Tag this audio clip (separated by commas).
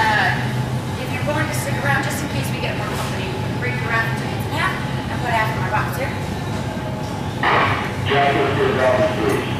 Speech